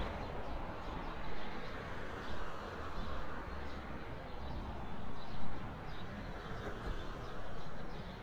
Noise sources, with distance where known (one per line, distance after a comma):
background noise